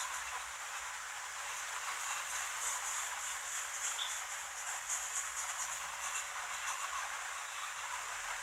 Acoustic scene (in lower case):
restroom